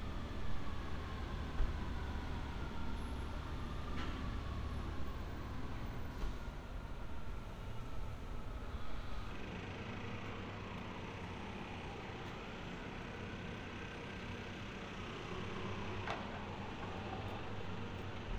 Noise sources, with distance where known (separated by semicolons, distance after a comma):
engine of unclear size; siren, far